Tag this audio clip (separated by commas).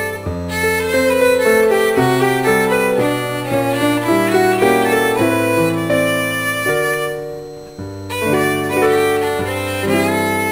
Bowed string instrument, Violin